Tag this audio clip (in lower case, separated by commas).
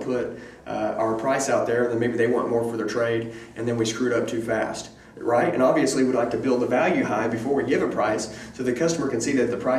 speech